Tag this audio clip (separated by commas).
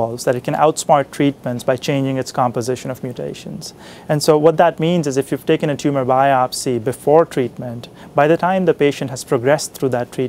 Speech